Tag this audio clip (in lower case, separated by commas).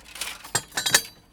tools